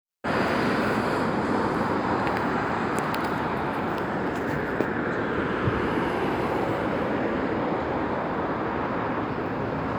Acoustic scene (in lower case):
street